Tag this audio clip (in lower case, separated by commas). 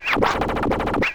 scratching (performance technique), music, musical instrument